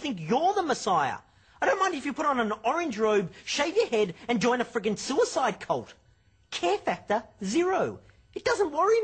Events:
[0.00, 1.14] male speech
[0.00, 9.03] music
[1.20, 1.59] breathing
[1.57, 5.94] male speech
[5.96, 6.46] breathing
[6.46, 7.23] male speech
[7.36, 8.01] male speech
[7.95, 8.30] breathing
[8.30, 9.03] male speech

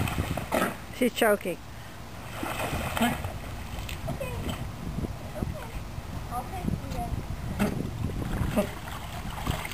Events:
[0.00, 0.73] splash
[0.00, 9.73] mechanisms
[0.00, 9.73] water
[0.46, 0.79] generic impact sounds
[0.95, 1.64] woman speaking
[2.15, 3.19] splash
[4.07, 4.66] child speech
[5.29, 5.74] child speech
[6.26, 7.20] woman speaking
[6.54, 8.58] wind noise (microphone)
[8.28, 9.73] splash

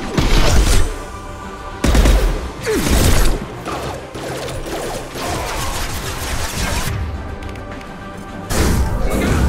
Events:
[0.00, 9.45] music
[0.00, 9.45] video game sound
[0.09, 0.83] gunshot
[1.79, 2.31] gunshot
[2.62, 3.33] gunshot
[2.65, 3.07] human voice
[3.61, 3.92] sound effect
[4.09, 4.96] sound effect
[5.14, 5.79] human voice
[5.17, 6.91] sound effect
[7.39, 7.55] clicking
[7.67, 7.85] clicking
[8.46, 8.86] sound effect
[9.02, 9.45] human voice
[9.02, 9.45] sound effect

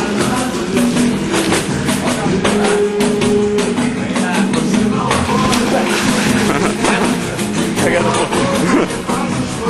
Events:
[0.00, 9.65] male singing
[0.00, 9.65] music
[2.01, 2.76] male speech
[4.11, 4.54] male speech
[5.48, 6.49] splash
[6.38, 7.05] laughter
[7.73, 8.42] male speech
[8.45, 8.97] laughter

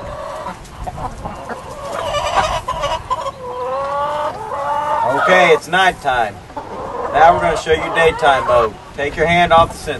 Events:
[0.00, 0.20] wind noise (microphone)
[0.00, 5.23] chicken
[0.00, 9.95] wind
[0.65, 1.36] wind noise (microphone)
[1.92, 3.12] wind noise (microphone)
[3.52, 3.98] tweet
[5.00, 6.30] male speech
[6.54, 8.59] chicken
[7.11, 8.70] male speech
[7.21, 7.89] wind noise (microphone)
[8.02, 8.22] wind noise (microphone)
[8.45, 8.60] wind noise (microphone)
[8.93, 9.95] male speech
[9.04, 9.95] wind noise (microphone)

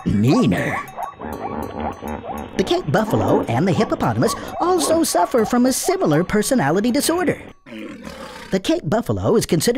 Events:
[0.00, 7.50] cowbell
[1.66, 1.81] generic impact sounds
[5.73, 5.95] yip
[7.63, 8.54] animal
[8.50, 9.75] male speech

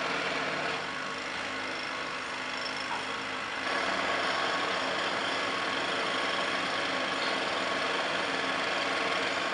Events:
[0.00, 9.53] jackhammer
[2.86, 3.14] generic impact sounds
[7.19, 7.41] generic impact sounds

